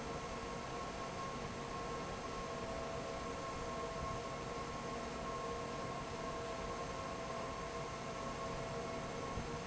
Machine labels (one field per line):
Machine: fan